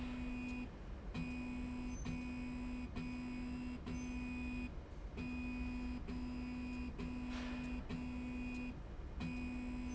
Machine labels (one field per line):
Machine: slide rail